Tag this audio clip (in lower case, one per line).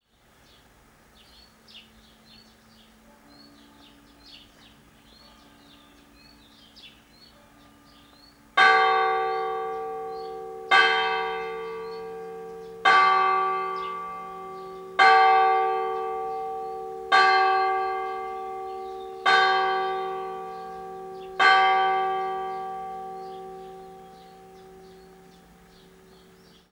bell
church bell